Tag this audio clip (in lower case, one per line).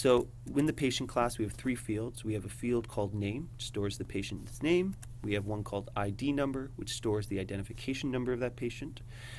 speech